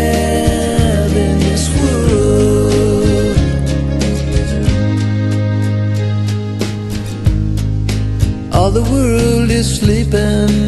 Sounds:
music
song

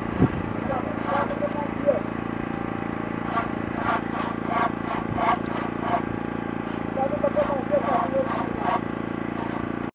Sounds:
speech

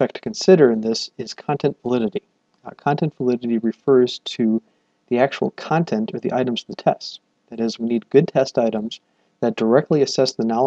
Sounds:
speech

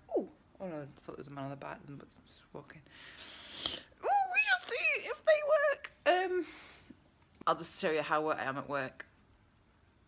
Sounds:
speech

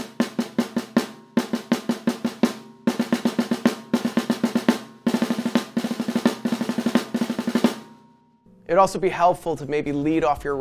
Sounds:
bass drum
drum roll
playing snare drum
speech
snare drum
music

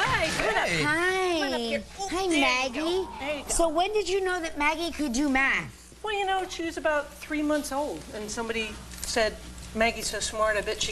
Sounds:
speech

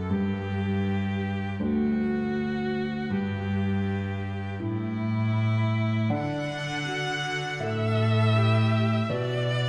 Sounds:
classical music
music

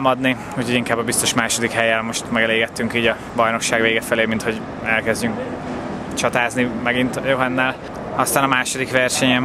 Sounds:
speech
truck
vehicle

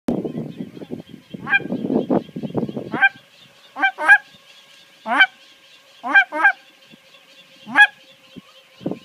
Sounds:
outside, rural or natural
honk

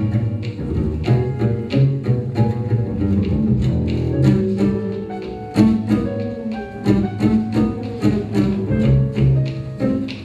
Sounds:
music
musical instrument

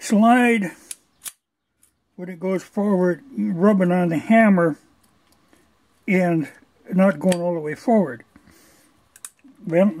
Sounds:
speech

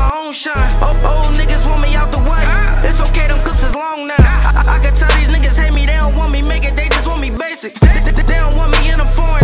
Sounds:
music

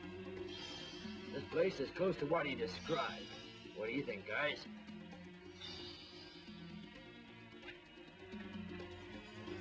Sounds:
music
speech

